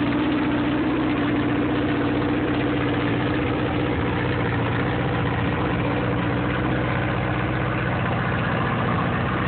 Vibrations from an idling engine